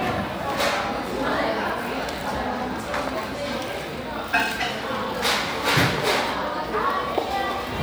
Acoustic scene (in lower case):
cafe